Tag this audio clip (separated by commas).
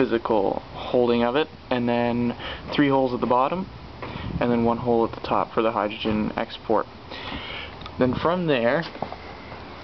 Speech